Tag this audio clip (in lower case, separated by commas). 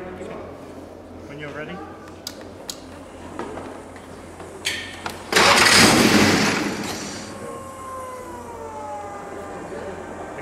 car passing by, speech